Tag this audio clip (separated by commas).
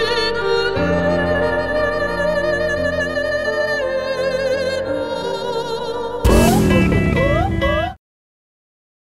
Music